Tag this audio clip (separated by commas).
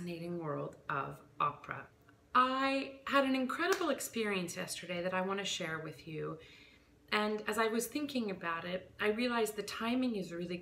Speech